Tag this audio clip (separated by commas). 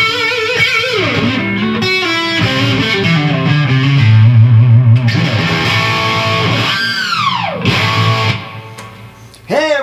Speech, Music, Sound effect